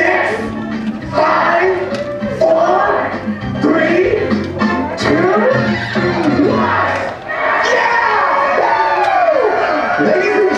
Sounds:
music
speech
crowd

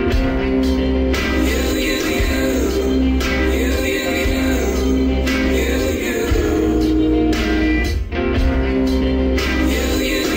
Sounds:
music
blues

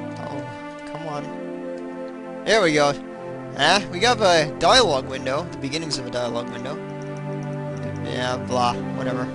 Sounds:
music
speech

